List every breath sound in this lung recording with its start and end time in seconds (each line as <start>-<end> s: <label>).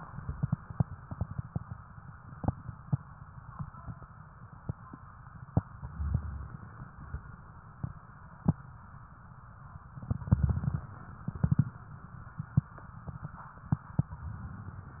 5.79-6.56 s: inhalation
9.97-10.88 s: inhalation
14.13-15.00 s: inhalation